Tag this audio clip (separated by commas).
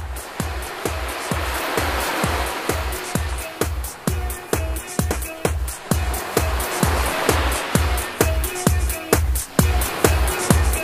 Exciting music, Music